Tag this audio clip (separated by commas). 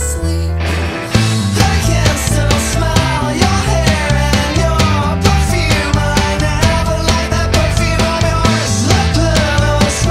Music